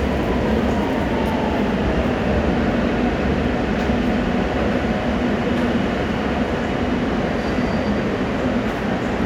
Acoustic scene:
subway station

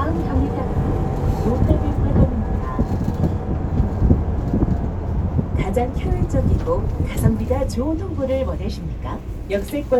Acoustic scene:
bus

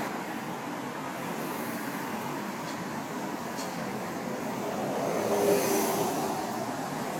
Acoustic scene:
street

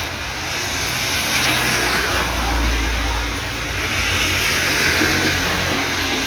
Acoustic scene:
street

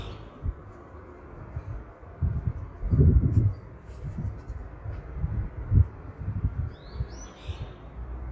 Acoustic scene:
park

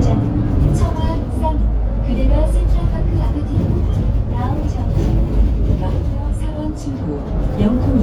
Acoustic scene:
bus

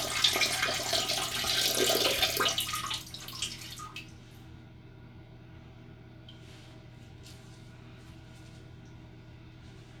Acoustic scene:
restroom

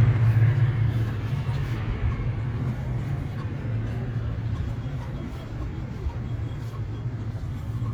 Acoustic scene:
park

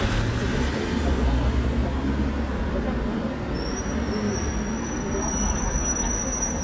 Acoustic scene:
street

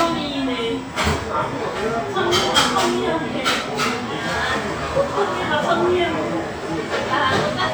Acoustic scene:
cafe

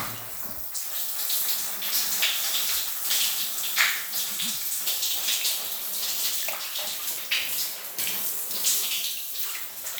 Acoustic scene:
restroom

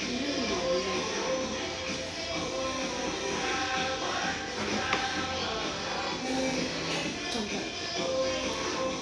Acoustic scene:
restaurant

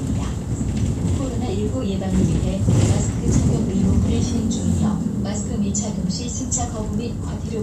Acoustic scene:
bus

